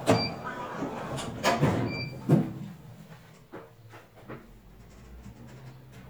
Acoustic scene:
elevator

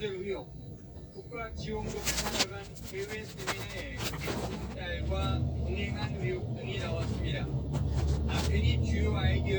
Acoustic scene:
car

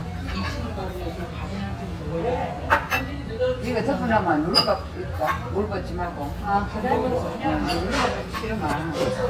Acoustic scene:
restaurant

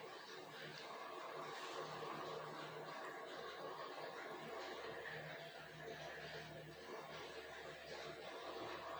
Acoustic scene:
elevator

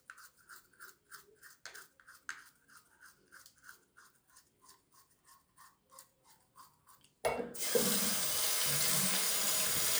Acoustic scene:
restroom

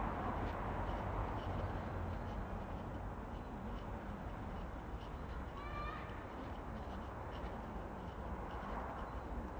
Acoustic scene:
residential area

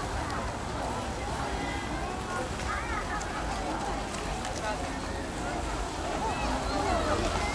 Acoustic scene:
park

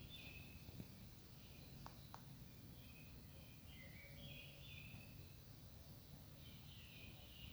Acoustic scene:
park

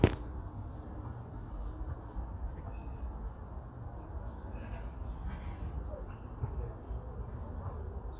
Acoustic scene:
park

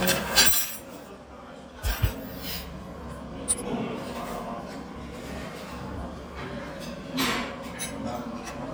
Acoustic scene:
restaurant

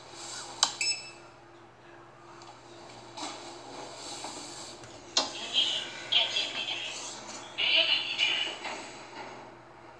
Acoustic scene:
elevator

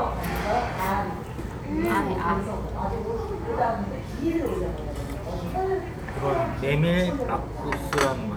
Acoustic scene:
restaurant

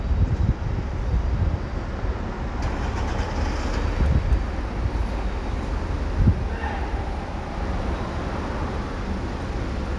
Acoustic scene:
street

